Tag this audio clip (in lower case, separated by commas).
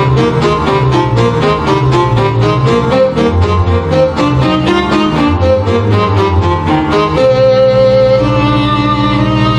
classical music, music